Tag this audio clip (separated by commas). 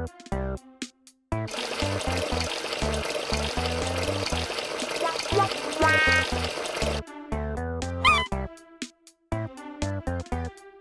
Water